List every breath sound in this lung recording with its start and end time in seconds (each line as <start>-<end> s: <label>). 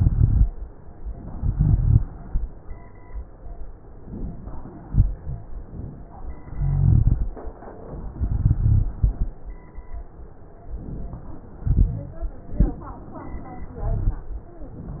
0.00-0.46 s: inhalation
0.00-0.46 s: crackles
1.35-2.09 s: inhalation
1.35-2.09 s: crackles
4.04-4.88 s: inhalation
4.88-5.48 s: exhalation
4.88-5.48 s: rhonchi
5.56-6.37 s: inhalation
6.55-7.36 s: exhalation
6.55-7.36 s: rhonchi
8.16-8.94 s: exhalation
8.16-8.94 s: rhonchi
10.68-11.57 s: inhalation
11.63-12.22 s: exhalation
11.63-12.22 s: rhonchi
12.90-13.79 s: inhalation
13.78-14.23 s: exhalation
13.78-14.23 s: rhonchi